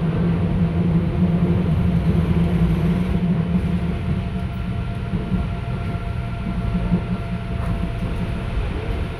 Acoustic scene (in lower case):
subway train